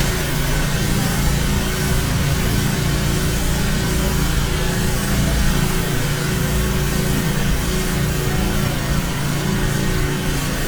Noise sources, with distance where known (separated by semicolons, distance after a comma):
rock drill, near